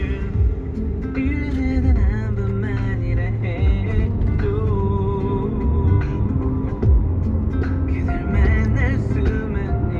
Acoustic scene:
car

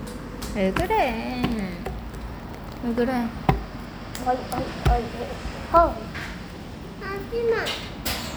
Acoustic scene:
cafe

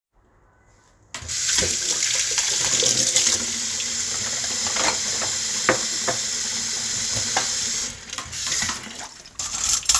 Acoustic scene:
kitchen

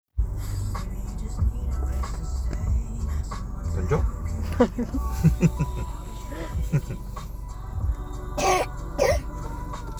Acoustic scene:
car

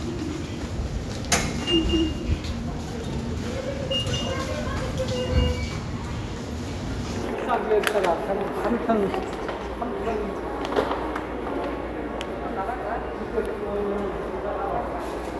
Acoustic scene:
subway station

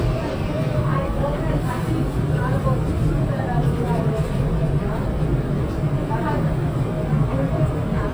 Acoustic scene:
subway train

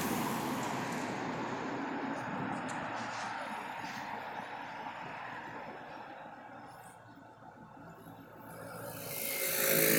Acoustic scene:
street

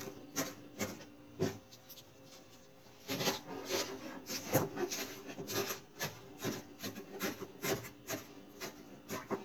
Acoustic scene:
kitchen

